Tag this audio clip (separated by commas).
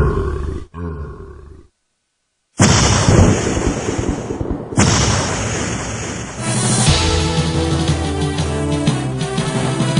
Burping